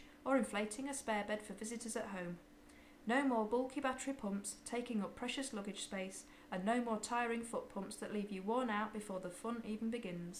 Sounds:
Speech

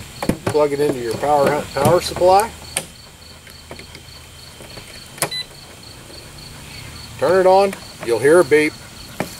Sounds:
Speech

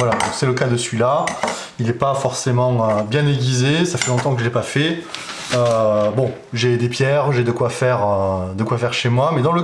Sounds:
sharpen knife

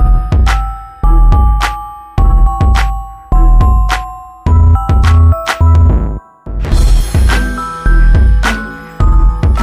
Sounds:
Music

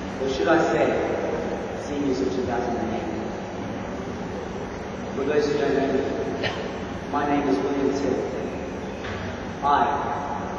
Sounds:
Speech, man speaking, Narration

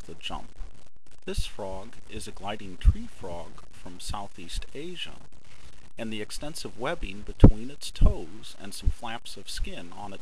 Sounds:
Speech

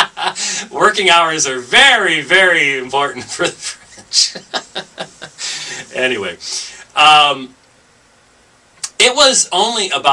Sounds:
Speech

